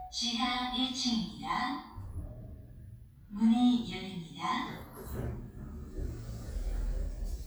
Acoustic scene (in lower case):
elevator